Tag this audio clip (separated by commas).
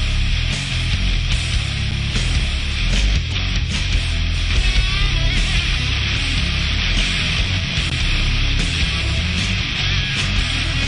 Music